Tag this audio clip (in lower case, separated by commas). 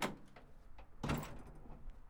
vehicle, truck, motor vehicle (road)